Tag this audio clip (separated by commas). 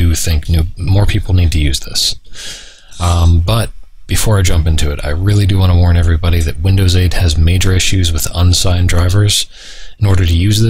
Speech